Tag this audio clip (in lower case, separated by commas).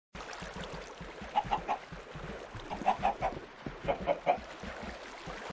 chicken, cluck